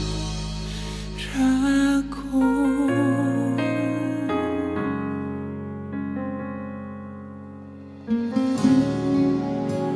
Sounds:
Tender music, Music

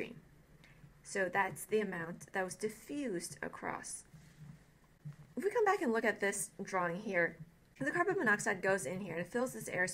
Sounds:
Narration, Speech

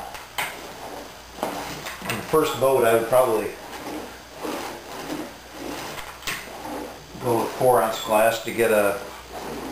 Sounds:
Speech

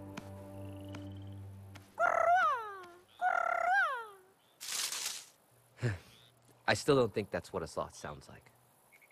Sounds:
Speech, Music

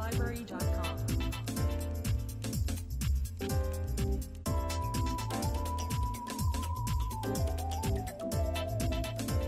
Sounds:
Music

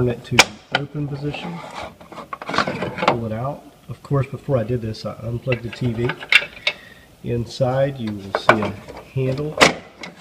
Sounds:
Speech

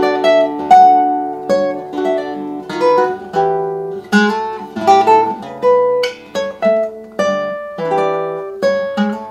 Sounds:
Musical instrument, Acoustic guitar, Music, Strum, Plucked string instrument, Guitar

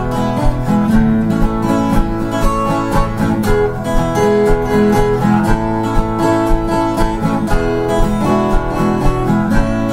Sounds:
Music

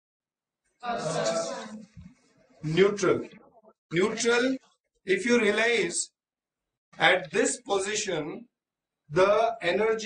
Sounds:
Speech

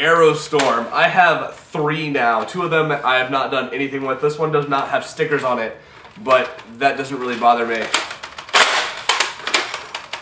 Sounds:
Speech, inside a small room

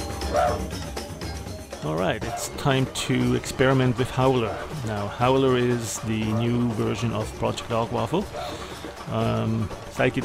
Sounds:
Music, Speech

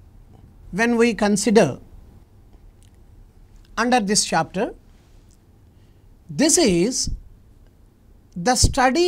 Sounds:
Speech

